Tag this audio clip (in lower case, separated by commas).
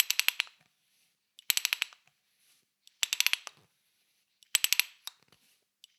mechanisms, tools, pawl